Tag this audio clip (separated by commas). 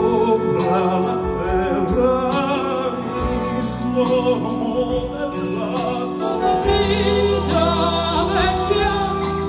Progressive rock, Singing, Music, Drum kit